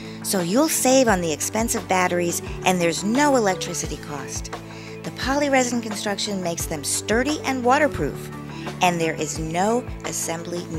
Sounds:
Speech, Music

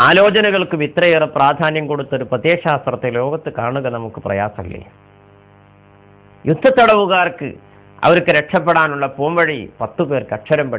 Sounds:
man speaking, Speech, monologue

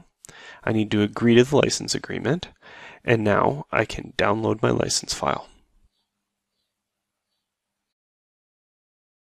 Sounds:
inside a small room, Speech

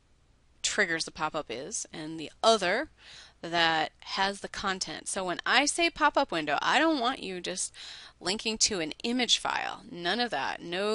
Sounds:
Speech

